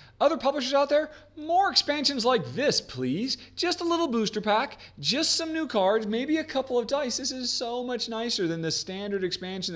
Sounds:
inside a small room, Speech

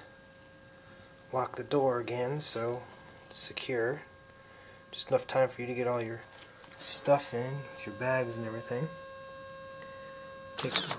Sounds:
Speech

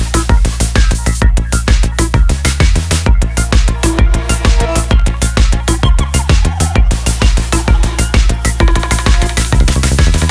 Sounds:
Electronica

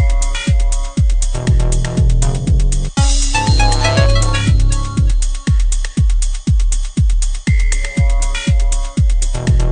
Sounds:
Music

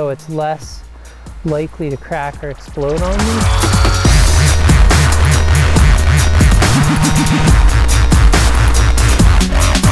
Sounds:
Music, Speech, Drum and bass

